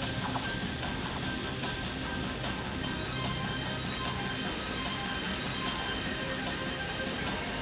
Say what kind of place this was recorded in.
park